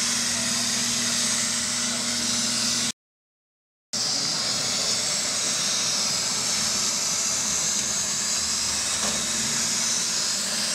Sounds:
Vacuum cleaner

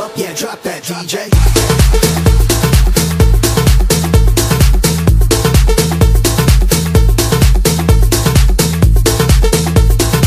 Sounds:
Music

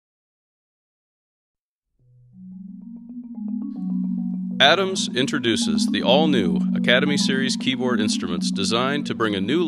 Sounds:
Percussion, Musical instrument, Vibraphone, Marimba

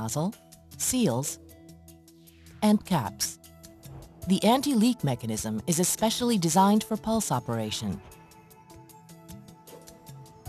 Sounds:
Music, Speech

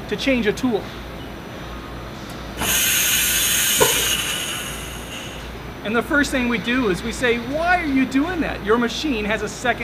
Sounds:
Speech

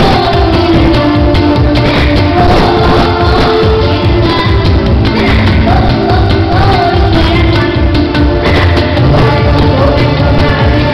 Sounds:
Folk music, Music

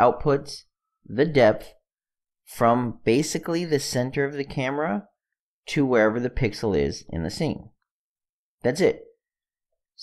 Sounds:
Speech

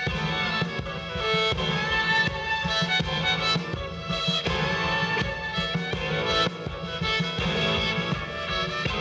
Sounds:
Music

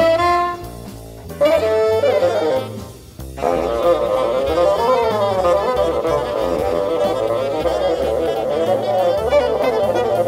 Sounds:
playing bassoon

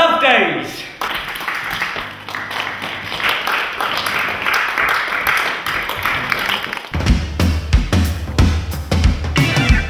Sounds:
Speech, Music

